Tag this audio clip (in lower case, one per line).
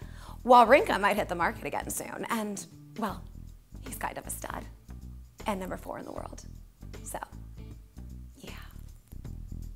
speech
music
female speech